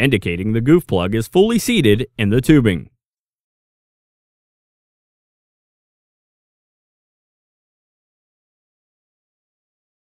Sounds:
speech

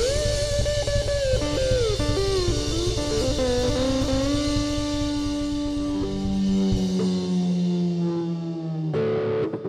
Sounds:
music

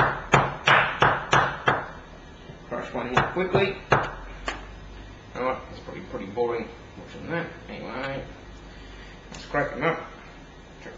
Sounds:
speech, inside a small room

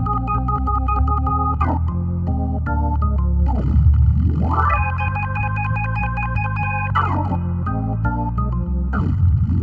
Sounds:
playing piano, organ, piano, electric piano, keyboard (musical), musical instrument, music

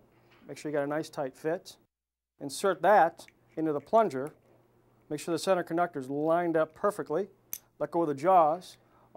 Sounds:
tools, speech

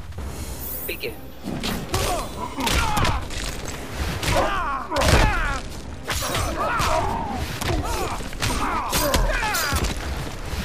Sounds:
music, speech, swish

